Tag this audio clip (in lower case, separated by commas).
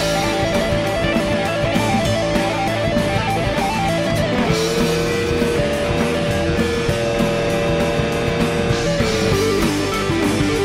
music